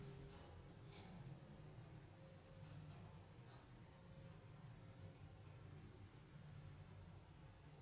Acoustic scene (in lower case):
elevator